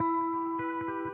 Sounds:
Music, Musical instrument, Electric guitar, Plucked string instrument, Guitar

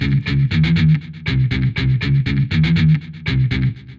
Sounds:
Music, Electric guitar, Guitar, Musical instrument, Plucked string instrument

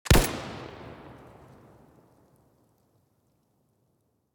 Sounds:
Explosion

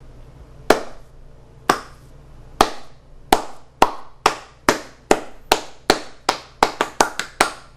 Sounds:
Hands, Clapping

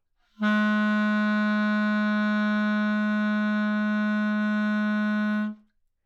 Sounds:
woodwind instrument, Musical instrument, Music

